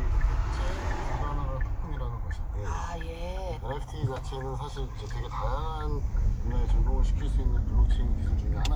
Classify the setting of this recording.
car